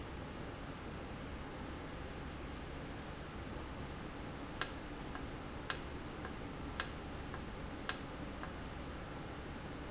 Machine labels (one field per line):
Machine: valve